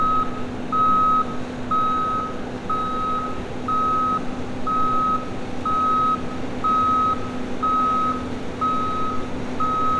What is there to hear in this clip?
reverse beeper